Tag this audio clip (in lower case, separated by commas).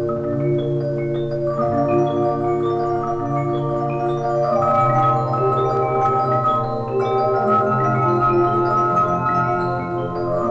organ, electronic organ